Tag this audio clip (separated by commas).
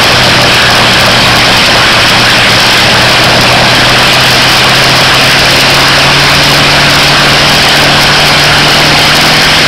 Heavy engine (low frequency), Vehicle